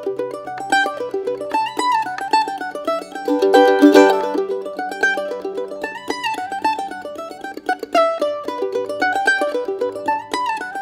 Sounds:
playing mandolin

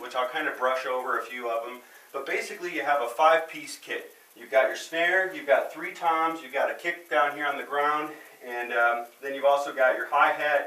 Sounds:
speech

